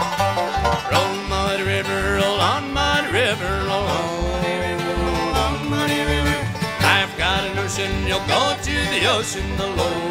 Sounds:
Music

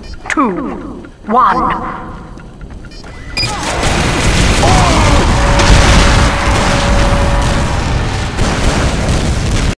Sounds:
Speech

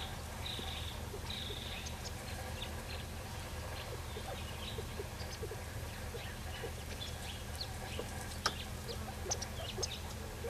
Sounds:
Bird

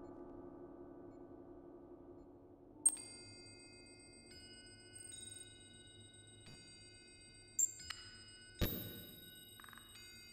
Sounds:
Bass drum, Music, Drum, Percussion, Musical instrument

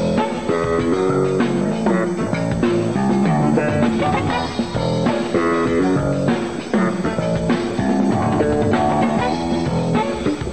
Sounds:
Jazz, Music

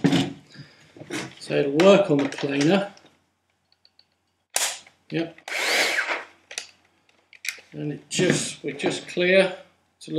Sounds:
Speech, Power tool

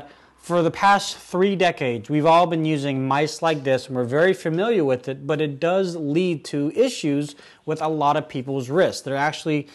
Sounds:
Speech

